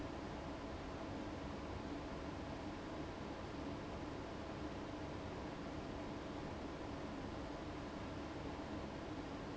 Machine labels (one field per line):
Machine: fan